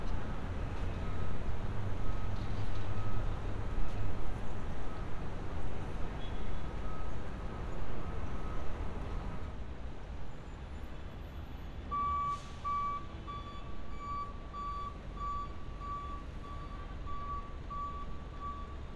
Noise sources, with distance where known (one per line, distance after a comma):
reverse beeper